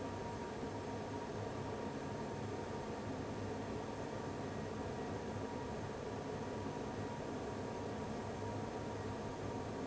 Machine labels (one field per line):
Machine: fan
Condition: abnormal